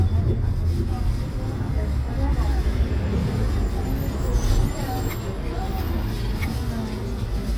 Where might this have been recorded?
on a bus